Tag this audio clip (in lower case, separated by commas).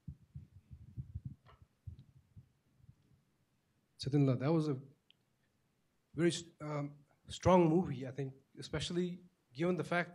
speech